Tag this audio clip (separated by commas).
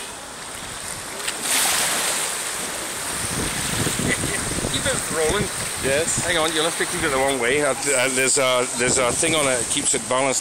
Speech, Laughter